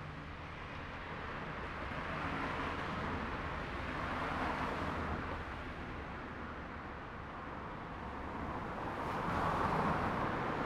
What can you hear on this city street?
car, car wheels rolling